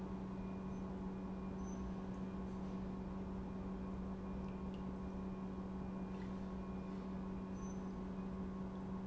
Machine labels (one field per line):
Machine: pump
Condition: normal